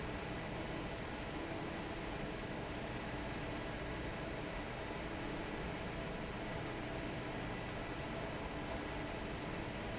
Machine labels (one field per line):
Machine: fan